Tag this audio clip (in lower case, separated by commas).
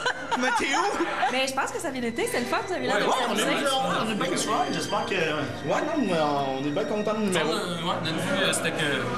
music, speech